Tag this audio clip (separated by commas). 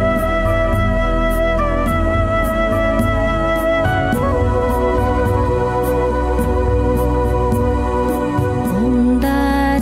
Music